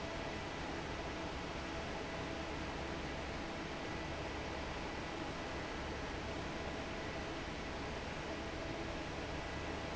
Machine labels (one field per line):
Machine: fan